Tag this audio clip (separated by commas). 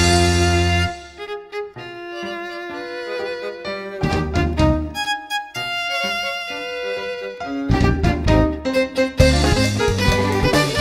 Music, Musical instrument, Violin